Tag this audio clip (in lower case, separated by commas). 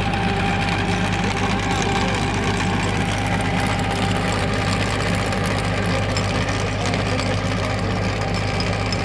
tractor digging